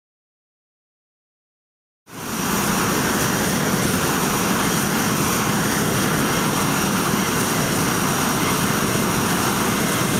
Aircraft engine sound followed by an airplane sound